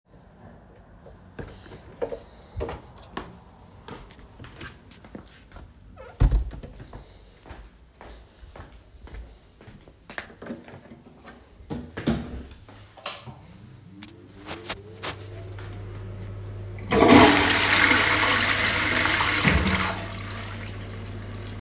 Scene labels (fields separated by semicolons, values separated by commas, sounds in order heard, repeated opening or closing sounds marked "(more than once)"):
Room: bedroom, hallway, bathroom; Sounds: footsteps, door, light switch, toilet flushing